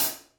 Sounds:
Cymbal, Percussion, Music, Hi-hat, Musical instrument

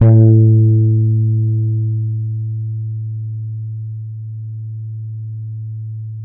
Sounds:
Musical instrument, Bass guitar, Guitar, Music, Plucked string instrument

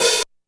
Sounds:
Percussion, Cymbal, Musical instrument, Hi-hat, Music

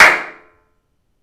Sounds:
Clapping, Hands

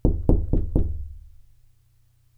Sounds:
Door, Domestic sounds, Wood, Knock

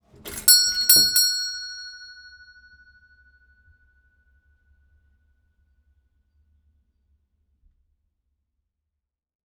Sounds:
Doorbell, Door, Alarm, Domestic sounds

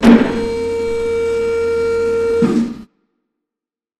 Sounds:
Mechanisms

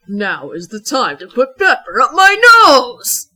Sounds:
Human voice

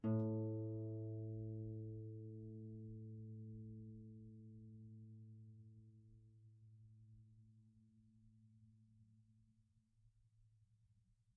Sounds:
Musical instrument, Music, Harp

